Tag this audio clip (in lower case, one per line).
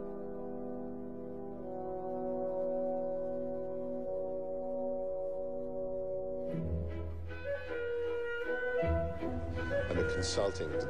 clarinet